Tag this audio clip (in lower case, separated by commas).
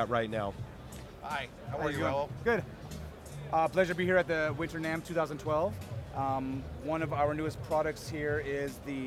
music, speech